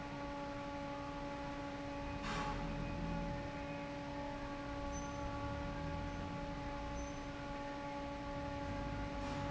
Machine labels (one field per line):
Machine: fan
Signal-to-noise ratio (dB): 0 dB